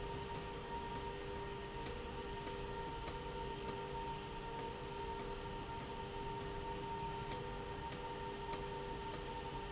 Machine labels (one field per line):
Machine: slide rail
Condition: abnormal